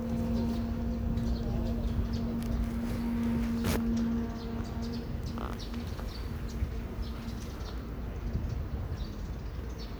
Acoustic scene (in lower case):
park